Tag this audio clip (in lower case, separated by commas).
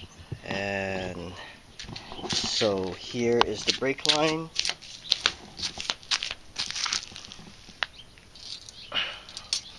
chirp, bird call, bird